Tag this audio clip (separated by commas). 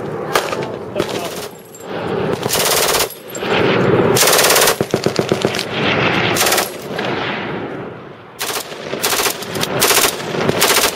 machine gun shooting